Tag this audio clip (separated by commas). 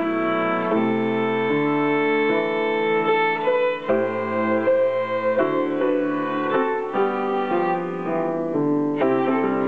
Music, Musical instrument, fiddle